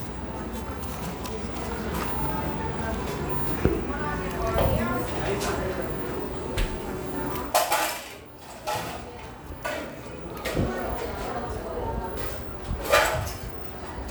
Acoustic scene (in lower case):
cafe